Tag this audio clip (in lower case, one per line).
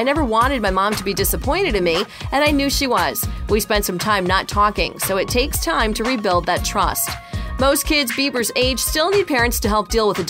music
speech